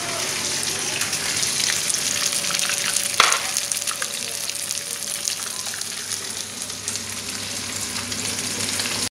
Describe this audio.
Sizzling and cracking are occurring, and people are speaking in the background